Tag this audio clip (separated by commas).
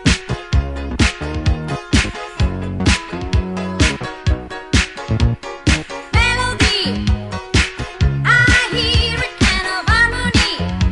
Music, Funk